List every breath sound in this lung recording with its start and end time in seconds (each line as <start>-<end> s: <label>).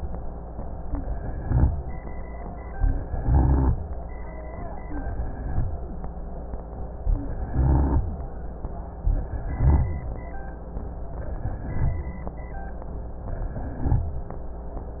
1.08-1.92 s: inhalation
1.08-1.92 s: rhonchi
2.90-3.74 s: inhalation
2.90-3.74 s: rhonchi
4.80-5.64 s: inhalation
7.21-8.05 s: inhalation
7.21-8.05 s: rhonchi
9.03-10.06 s: inhalation
9.03-10.06 s: rhonchi
11.29-12.31 s: inhalation
11.29-12.31 s: rhonchi
13.28-14.14 s: inhalation
13.28-14.14 s: rhonchi